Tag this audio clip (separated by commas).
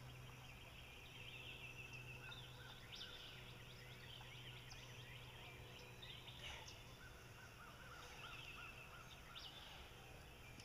Bird, Animal